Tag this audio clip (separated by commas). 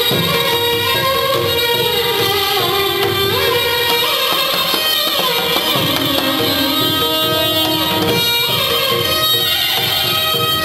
fiddle, Music, Musical instrument